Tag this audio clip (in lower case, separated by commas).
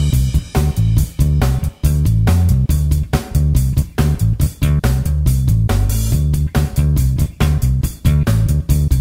music